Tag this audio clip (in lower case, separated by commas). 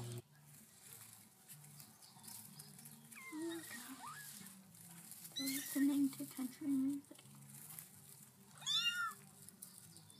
pets, meow, cat, animal